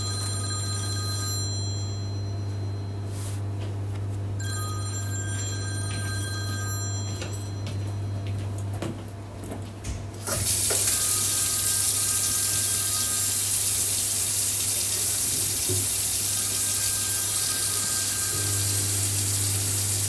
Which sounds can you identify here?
phone ringing, microwave, footsteps, running water